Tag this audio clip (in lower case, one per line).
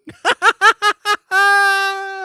laughter
human voice